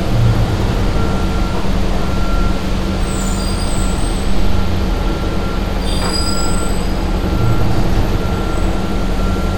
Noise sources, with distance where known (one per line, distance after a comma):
engine of unclear size, near
reverse beeper